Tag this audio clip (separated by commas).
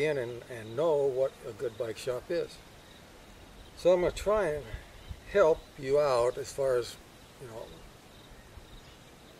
Speech